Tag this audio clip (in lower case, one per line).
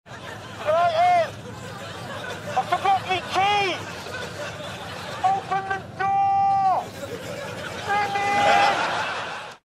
speech